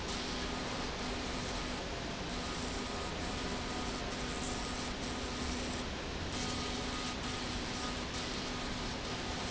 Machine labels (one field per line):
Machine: slide rail